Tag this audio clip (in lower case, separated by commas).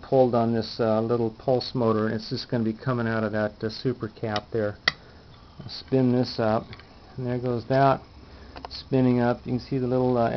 speech